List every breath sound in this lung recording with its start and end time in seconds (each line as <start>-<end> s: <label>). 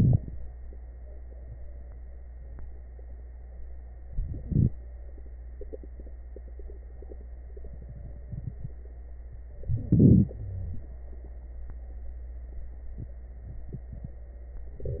0.00-0.31 s: inhalation
4.14-4.74 s: inhalation
9.72-10.31 s: inhalation
10.37-10.83 s: wheeze